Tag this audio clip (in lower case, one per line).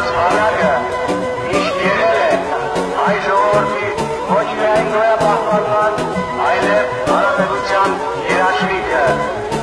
speech
soundtrack music
music